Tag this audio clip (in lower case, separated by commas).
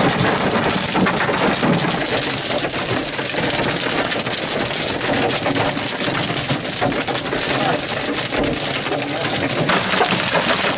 hail